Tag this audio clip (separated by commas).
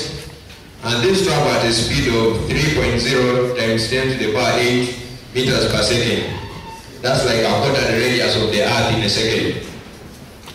Male speech, Speech